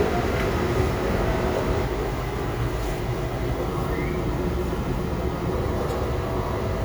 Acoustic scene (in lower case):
crowded indoor space